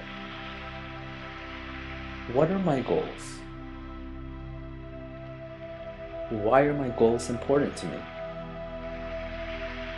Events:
[0.00, 9.95] music
[2.11, 3.32] male speech
[6.28, 8.07] male speech

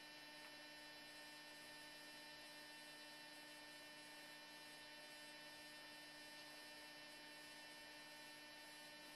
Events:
[0.00, 9.15] mechanisms
[0.42, 0.56] tap

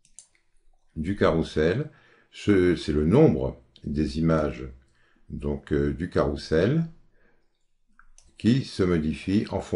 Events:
[0.00, 9.75] background noise
[0.02, 0.09] clicking
[0.19, 0.29] clicking
[0.92, 1.90] male speech
[1.92, 2.31] breathing
[2.35, 3.55] male speech
[3.74, 3.83] clicking
[3.83, 4.76] male speech
[4.84, 5.27] breathing
[5.32, 6.96] male speech
[7.98, 8.10] clicking
[8.18, 8.28] clicking
[8.41, 9.75] male speech
[9.44, 9.53] clicking

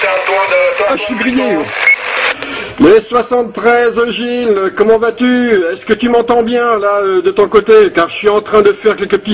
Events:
[0.00, 1.55] radio
[0.00, 1.63] male speech
[0.00, 9.33] conversation
[0.00, 9.33] mechanisms
[1.73, 1.89] bleep
[2.37, 2.43] tick
[2.72, 2.83] generic impact sounds
[2.73, 9.33] male speech

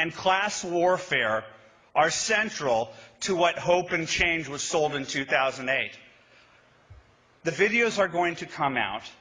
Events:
[0.00, 1.48] male speech
[0.00, 9.20] background noise
[1.46, 1.84] breathing
[1.92, 2.82] male speech
[3.16, 5.98] male speech
[6.24, 6.60] breathing
[6.85, 6.98] tap
[7.41, 9.19] male speech

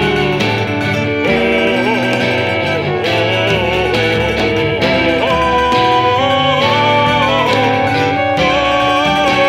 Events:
[0.00, 0.63] male singing
[0.00, 9.45] music
[1.21, 9.45] male singing

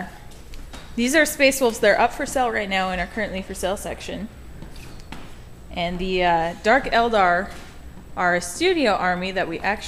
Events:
[0.00, 9.85] background noise
[0.27, 0.81] generic impact sounds
[0.92, 4.23] female speech
[4.58, 5.24] generic impact sounds
[5.74, 7.53] female speech
[8.13, 9.85] female speech

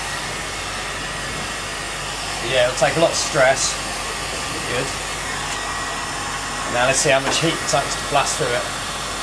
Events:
[0.00, 9.22] mechanisms
[2.38, 3.70] man speaking
[4.63, 4.82] man speaking
[6.64, 8.68] man speaking
[7.20, 7.31] generic impact sounds

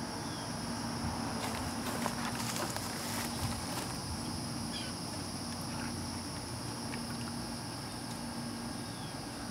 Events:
[0.00, 9.50] insect
[0.00, 9.50] mechanisms
[0.12, 0.44] chirp
[1.33, 1.58] footsteps
[1.84, 3.87] footsteps
[3.34, 3.55] wind noise (microphone)
[4.71, 4.92] chirp
[5.46, 5.52] tick
[5.64, 5.94] chirp
[6.32, 6.37] tick
[6.88, 6.94] tick
[8.07, 8.12] tick
[8.76, 9.17] chirp

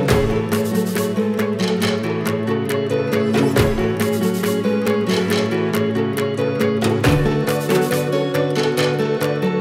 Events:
[0.00, 9.60] music

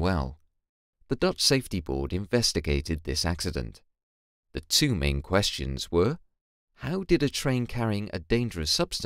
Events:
[0.00, 0.39] man speaking
[1.04, 3.77] man speaking
[4.49, 6.26] man speaking
[6.72, 9.05] man speaking

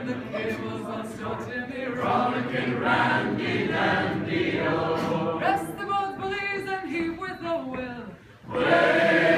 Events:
[0.00, 5.77] choir
[0.00, 9.35] background noise
[4.85, 5.14] generic impact sounds
[5.33, 8.10] female singing
[6.11, 6.44] tap
[6.91, 7.40] tap
[7.64, 7.79] tap
[8.45, 9.35] choir

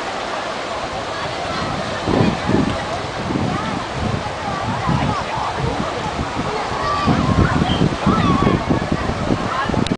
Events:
[0.00, 9.95] water
[0.00, 9.95] wind
[0.77, 1.83] speech
[0.91, 9.95] speech noise
[1.40, 2.87] wind noise (microphone)
[2.12, 2.36] speech
[2.62, 3.02] speech
[3.17, 5.17] wind noise (microphone)
[3.39, 3.88] child speech
[4.34, 5.17] child speech
[5.17, 5.52] speech
[5.28, 6.50] wind noise (microphone)
[5.56, 6.11] man speaking
[6.66, 6.89] wind noise (microphone)
[6.69, 7.38] shout
[7.00, 7.94] wind noise (microphone)
[7.63, 7.84] whistle
[8.05, 8.54] shout
[8.05, 9.48] wind noise (microphone)
[8.97, 9.75] speech
[9.61, 9.95] wind noise (microphone)
[9.83, 9.90] tick

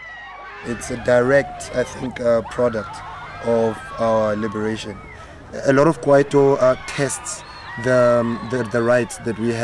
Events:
[0.00, 9.63] crowd
[0.64, 1.45] man speaking
[1.72, 1.87] man speaking
[2.03, 2.89] man speaking
[3.41, 3.78] man speaking
[3.98, 4.94] man speaking
[5.47, 6.75] man speaking
[6.93, 7.24] man speaking
[7.78, 9.63] man speaking

